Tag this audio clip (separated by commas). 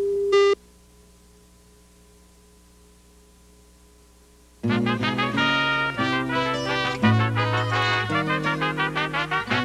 Music, Background music